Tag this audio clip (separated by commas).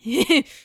Laughter, Human voice, Giggle